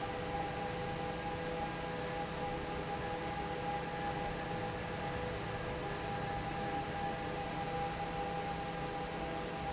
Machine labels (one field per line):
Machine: fan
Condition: normal